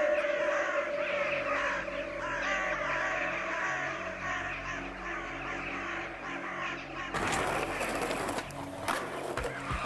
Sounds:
skateboarding
skateboard

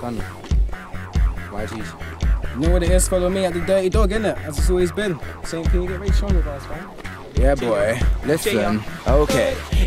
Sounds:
speech
music

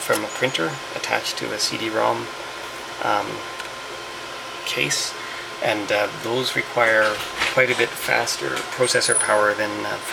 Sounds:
printer
speech

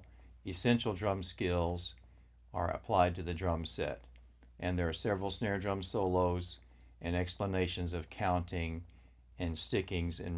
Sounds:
speech

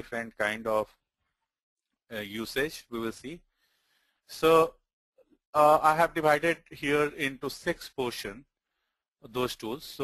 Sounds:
speech

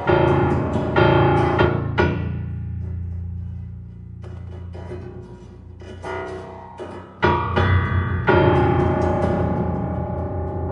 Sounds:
piano
keyboard (musical)

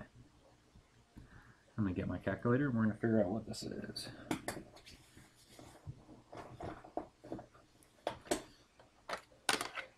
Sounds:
speech

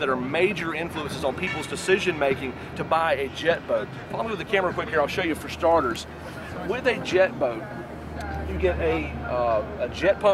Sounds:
speech

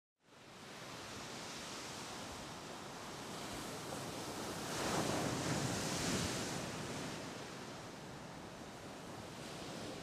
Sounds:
rustle

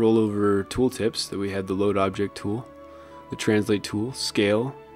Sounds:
speech
music

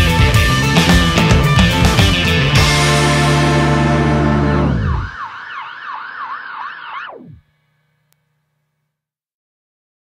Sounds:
music
police car (siren)

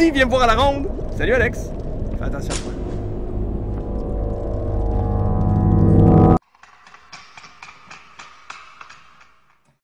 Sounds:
speech

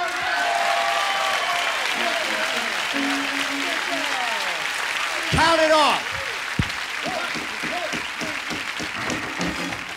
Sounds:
tap dancing

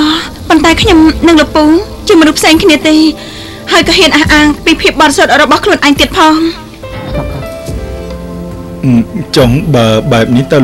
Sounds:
music
speech

